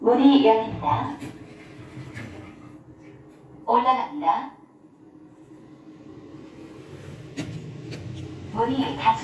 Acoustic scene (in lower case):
elevator